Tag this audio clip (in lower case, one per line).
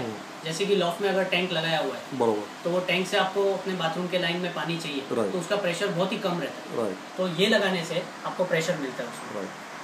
speech